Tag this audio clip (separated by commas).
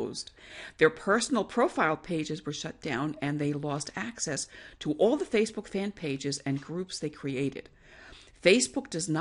Speech